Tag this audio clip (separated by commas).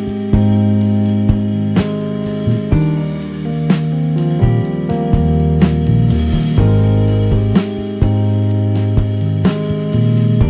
Music